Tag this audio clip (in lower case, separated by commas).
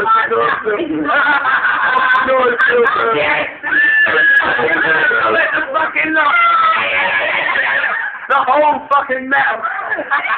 speech